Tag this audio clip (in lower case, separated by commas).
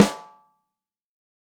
percussion, drum, snare drum, music, musical instrument